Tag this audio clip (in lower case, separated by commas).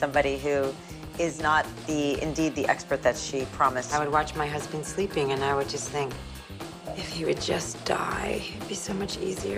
music, speech